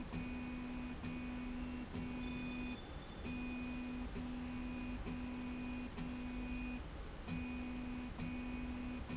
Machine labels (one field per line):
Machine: slide rail